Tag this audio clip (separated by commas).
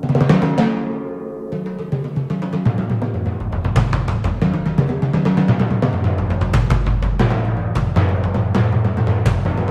playing tympani